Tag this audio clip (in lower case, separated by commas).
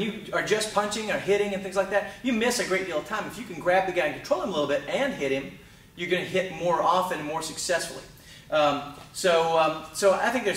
speech